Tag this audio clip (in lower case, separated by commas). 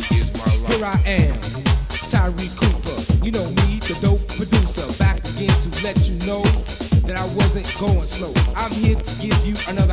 music, house music